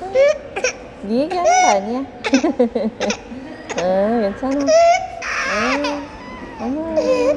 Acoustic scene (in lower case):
subway station